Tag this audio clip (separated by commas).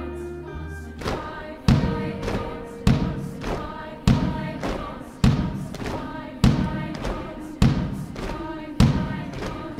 Choir, Music, thud, Singing